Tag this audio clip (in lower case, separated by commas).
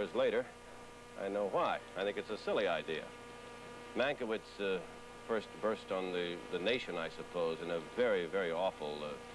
speech